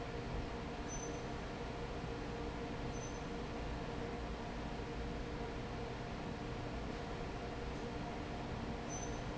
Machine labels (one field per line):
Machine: fan